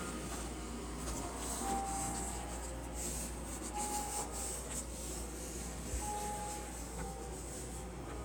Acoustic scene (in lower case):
subway station